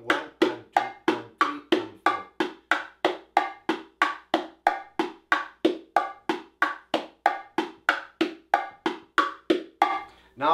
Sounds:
playing bongo

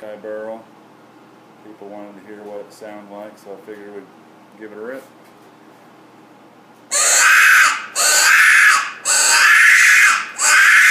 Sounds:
Speech

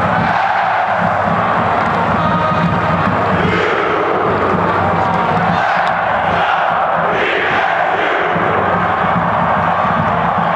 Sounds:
Speech, Music

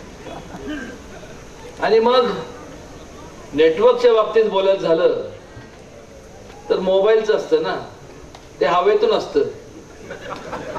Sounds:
Speech

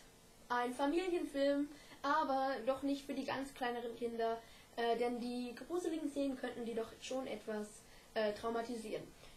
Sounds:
Speech

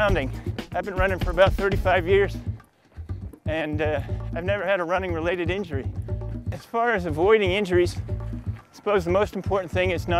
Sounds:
Speech, outside, rural or natural, Music

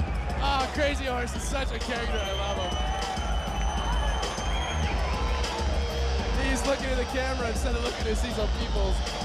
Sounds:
Music, Speech

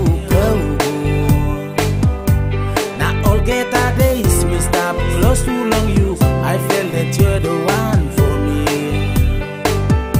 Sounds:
Music

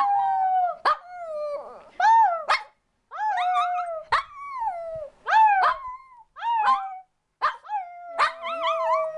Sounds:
Domestic animals, Howl, Dog, Animal

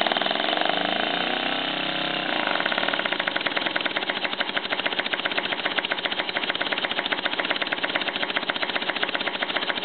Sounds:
Engine

